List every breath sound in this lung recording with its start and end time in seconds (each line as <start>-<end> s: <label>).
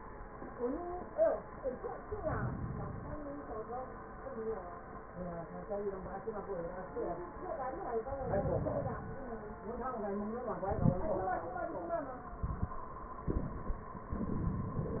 2.08-3.24 s: inhalation
8.08-9.23 s: inhalation